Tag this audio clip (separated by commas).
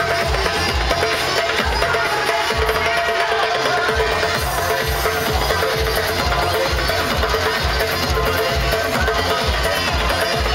Music, Techno, Electronic music